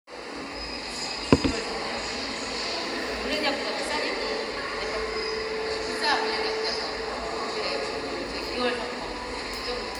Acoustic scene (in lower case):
subway station